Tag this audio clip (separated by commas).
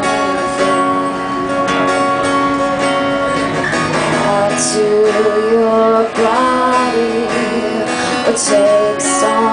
Music